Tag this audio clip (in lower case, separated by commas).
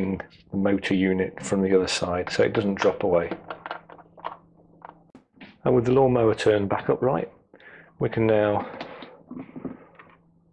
speech